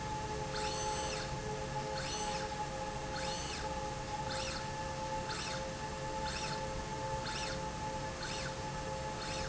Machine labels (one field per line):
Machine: slide rail